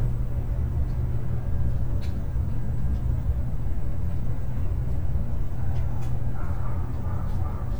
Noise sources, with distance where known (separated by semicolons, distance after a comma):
dog barking or whining, far